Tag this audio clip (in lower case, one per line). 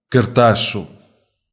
human voice